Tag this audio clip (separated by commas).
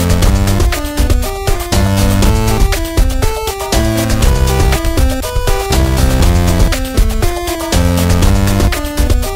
Sound effect, Music